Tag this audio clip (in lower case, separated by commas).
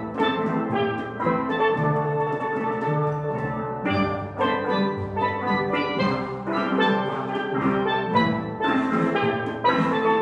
playing steelpan